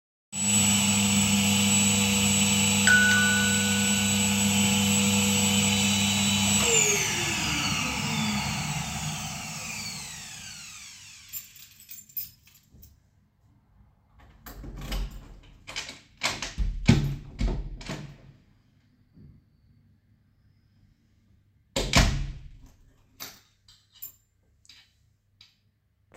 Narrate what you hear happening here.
Audio begins with the vacuum already on, the door bell rings, I turn off the vacuum, take out my keys, and open and close the door.